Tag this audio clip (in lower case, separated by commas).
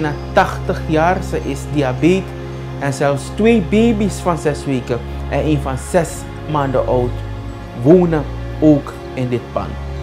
music, speech